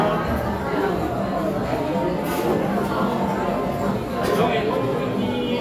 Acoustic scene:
cafe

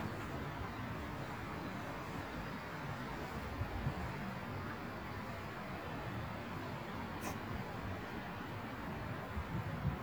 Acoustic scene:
residential area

